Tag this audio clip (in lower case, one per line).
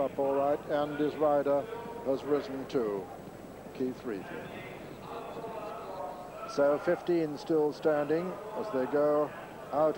speech